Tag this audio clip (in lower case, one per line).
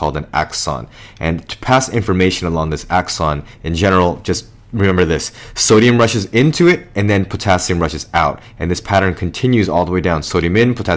speech